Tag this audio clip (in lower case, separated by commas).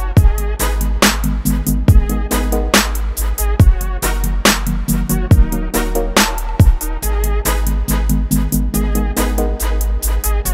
electronic music, dubstep, music